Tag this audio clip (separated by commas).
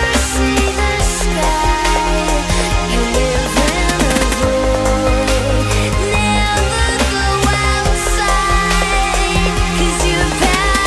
Music